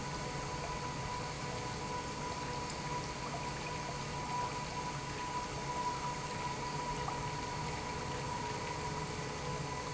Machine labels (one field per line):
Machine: pump